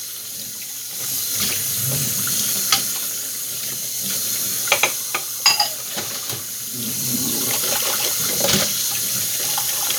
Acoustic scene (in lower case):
kitchen